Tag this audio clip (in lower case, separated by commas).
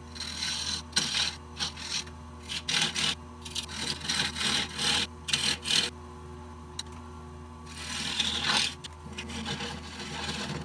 lathe spinning